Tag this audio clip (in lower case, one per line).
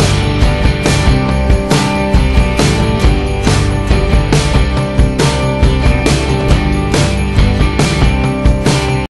music